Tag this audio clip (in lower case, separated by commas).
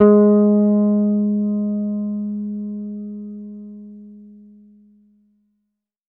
guitar, bass guitar, music, musical instrument, plucked string instrument